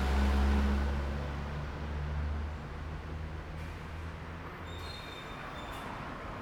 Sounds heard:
bus
truck
car
bus compressor
car wheels rolling
bus brakes
truck engine accelerating

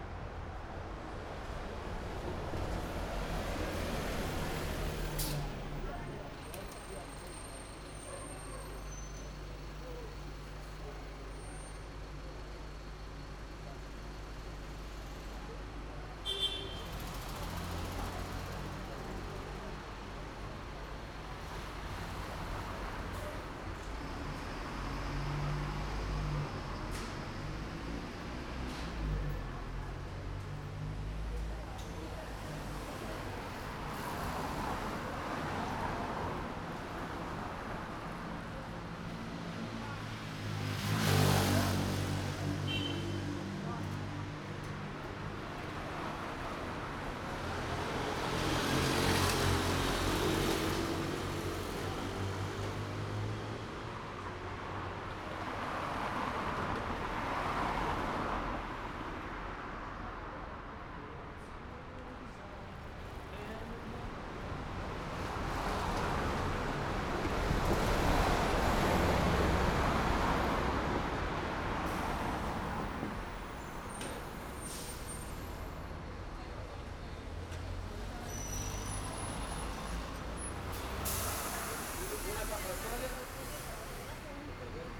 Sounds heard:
bus compressor
car engine accelerating
bus
bus engine accelerating
unclassified sound
bus brakes
car wheels rolling
car
people talking
bus wheels rolling
motorcycle
motorcycle engine accelerating
bus engine idling

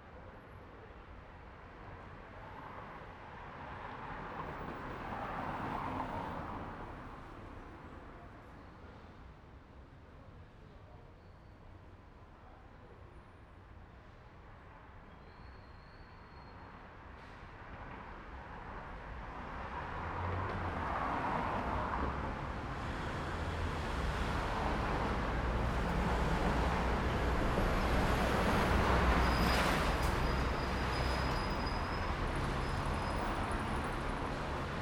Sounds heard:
car engine accelerating
people talking
car
car wheels rolling
bus
bus brakes
bus engine accelerating
bus compressor

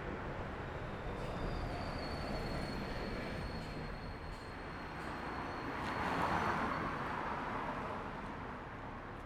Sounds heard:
bus
bus engine idling
bus compressor
car wheels rolling
car
bus brakes

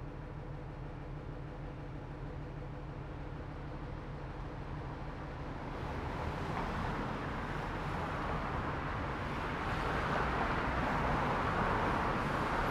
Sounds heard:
car
car wheels rolling
bus
bus brakes
bus engine idling

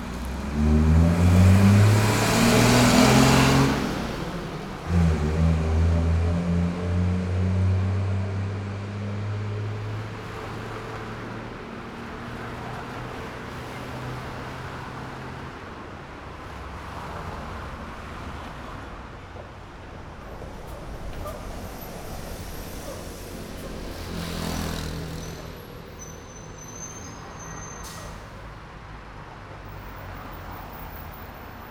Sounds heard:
bus compressor
bus engine accelerating
car wheels rolling
bus brakes
car
bus
motorcycle engine accelerating
motorcycle
bus wheels rolling
bus engine idling

